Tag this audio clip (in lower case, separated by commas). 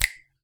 hands, finger snapping